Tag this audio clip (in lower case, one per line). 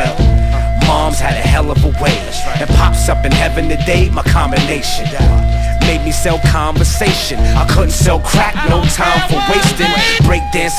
flute
music